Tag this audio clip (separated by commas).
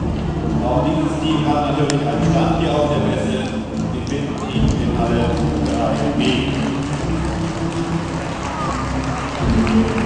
Speech, Clip-clop